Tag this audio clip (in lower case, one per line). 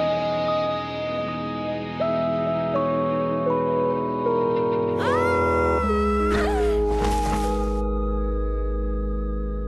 music